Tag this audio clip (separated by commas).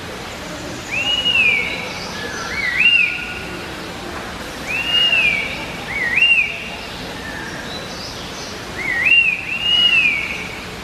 wood thrush calling